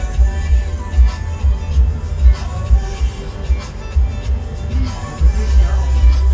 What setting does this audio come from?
car